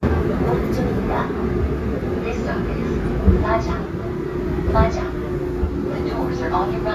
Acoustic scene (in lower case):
subway train